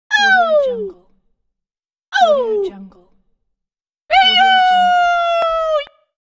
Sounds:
Whispering, Speech, Screaming

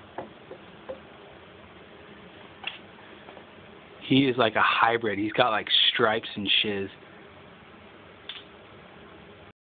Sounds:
Speech

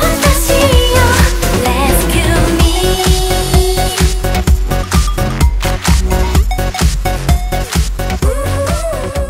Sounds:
Music

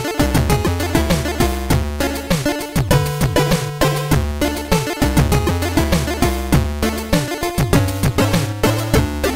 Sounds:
Music, Video game music

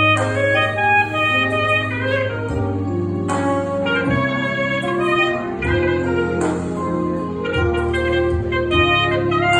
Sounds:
playing clarinet

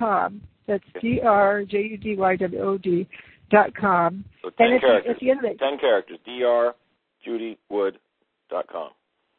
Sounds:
Speech

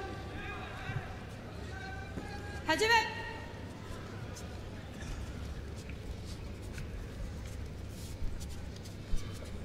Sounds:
Speech

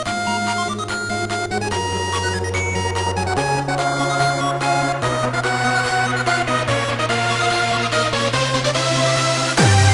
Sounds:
Music

